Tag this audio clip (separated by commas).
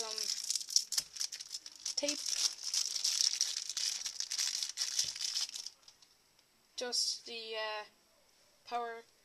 Speech